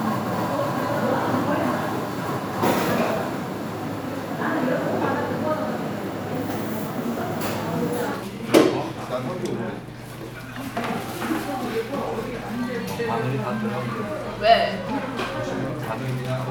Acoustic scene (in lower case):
crowded indoor space